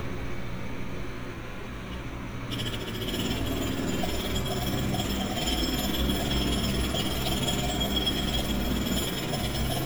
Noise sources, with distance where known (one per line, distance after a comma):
unidentified impact machinery, near